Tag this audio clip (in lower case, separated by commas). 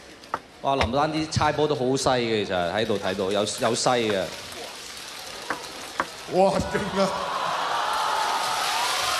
playing table tennis